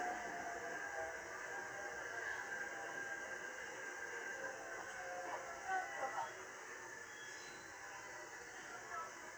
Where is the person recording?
on a subway train